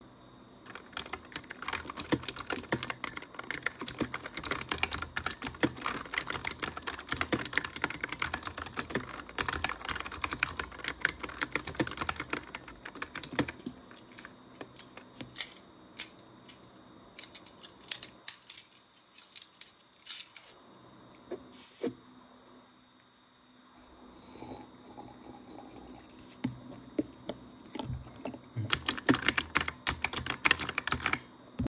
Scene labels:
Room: office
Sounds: keyboard typing, keys

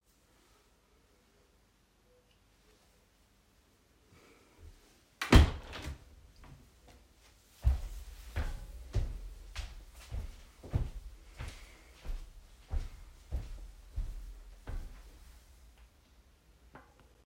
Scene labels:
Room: bedroom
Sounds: window, footsteps

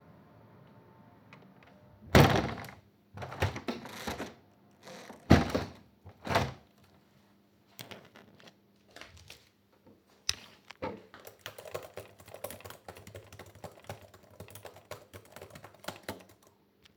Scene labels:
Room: office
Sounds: window, keyboard typing

